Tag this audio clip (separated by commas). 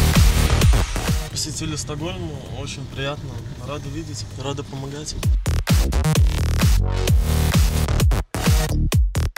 Music, Speech